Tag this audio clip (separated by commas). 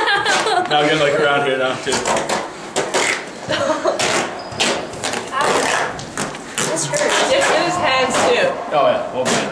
Speech